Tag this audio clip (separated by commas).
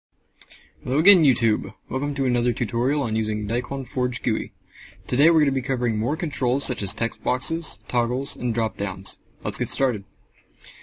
Speech synthesizer